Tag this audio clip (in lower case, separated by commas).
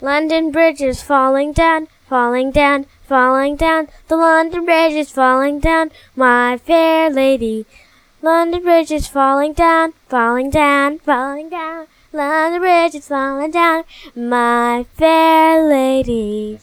singing, human voice